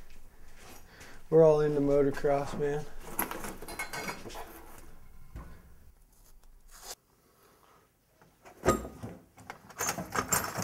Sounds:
Speech, inside a small room

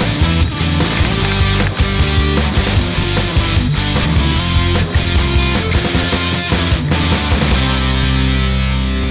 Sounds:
Music

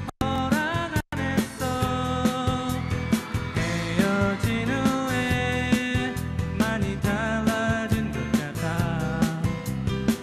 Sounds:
Music

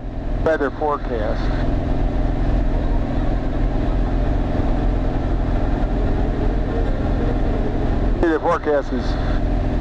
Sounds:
Car, Vehicle

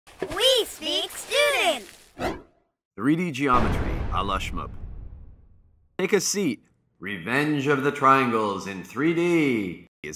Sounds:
Speech synthesizer

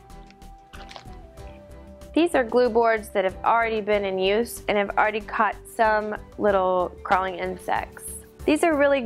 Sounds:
Music, Speech

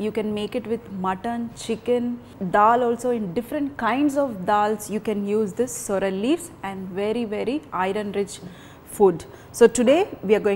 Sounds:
Speech

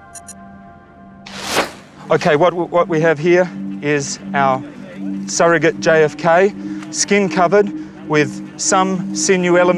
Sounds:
Music, Speech, outside, rural or natural

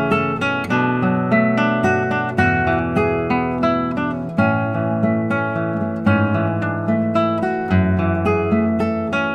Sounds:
Acoustic guitar, Guitar, Musical instrument, Strum, Music, Plucked string instrument

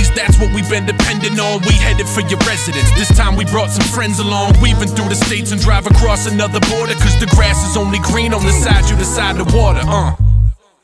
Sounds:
Music

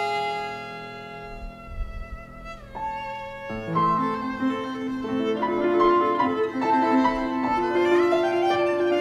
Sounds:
Violin, Bowed string instrument, Musical instrument, Music

